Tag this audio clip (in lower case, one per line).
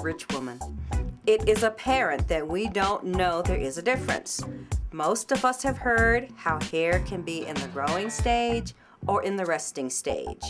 speech
music